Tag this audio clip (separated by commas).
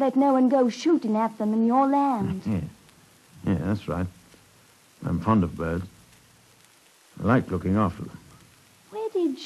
Speech